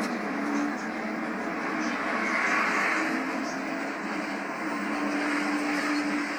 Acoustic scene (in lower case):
bus